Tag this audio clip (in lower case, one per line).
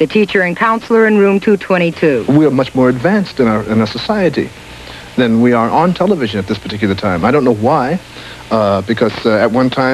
speech